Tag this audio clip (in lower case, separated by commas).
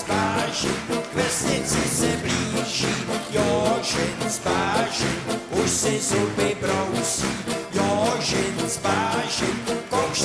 music, funny music